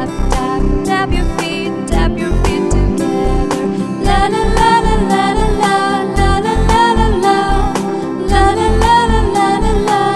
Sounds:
Music, Music for children, Singing

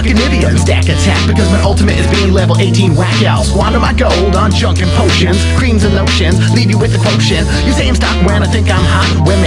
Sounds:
Music

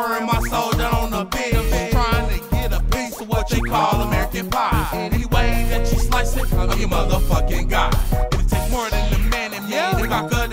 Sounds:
Soundtrack music, Music

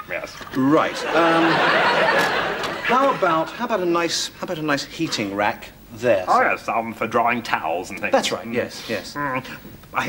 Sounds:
Speech

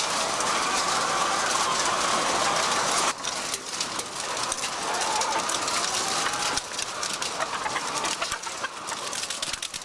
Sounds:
Bird, rooster

